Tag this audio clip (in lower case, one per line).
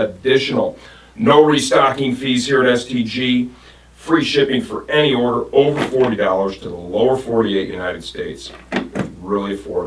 speech